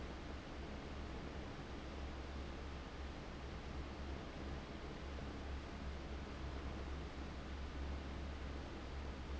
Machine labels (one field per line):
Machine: fan